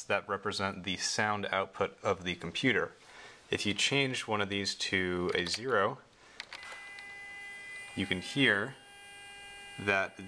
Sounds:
Speech

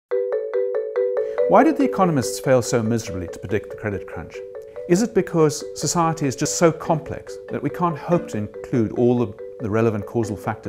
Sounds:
Music, Speech

